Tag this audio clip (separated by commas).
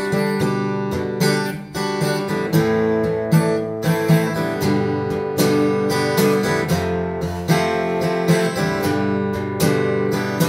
Music